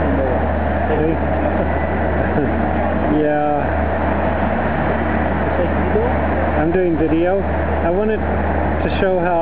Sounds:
vehicle, car, speech

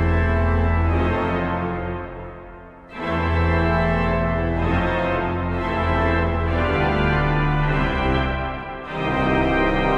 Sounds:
musical instrument, music, keyboard (musical)

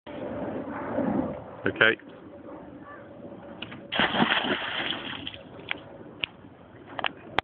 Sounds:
speech

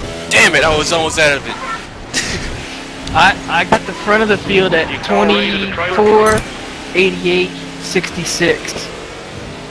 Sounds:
speech

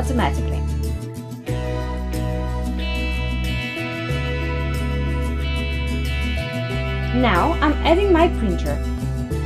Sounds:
music, speech

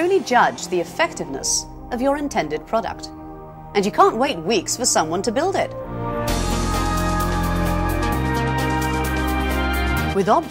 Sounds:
speech, music

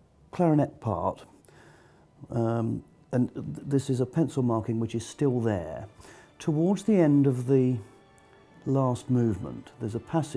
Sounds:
music, speech

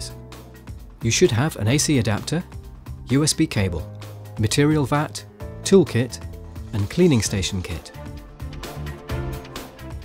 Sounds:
speech, music

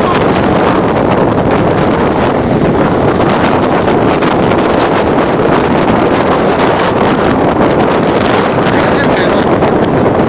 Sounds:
wind noise (microphone), speech

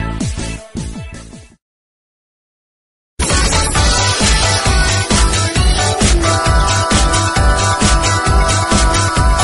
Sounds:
music

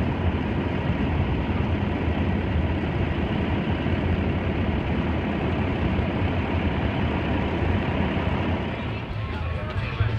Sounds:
vehicle, speech

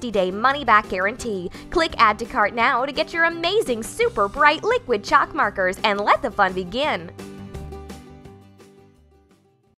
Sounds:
speech, music

